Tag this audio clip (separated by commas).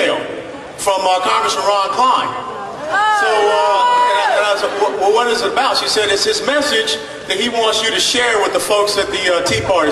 woman speaking, Male speech, Speech, monologue